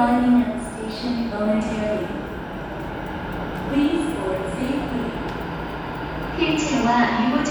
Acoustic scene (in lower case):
subway station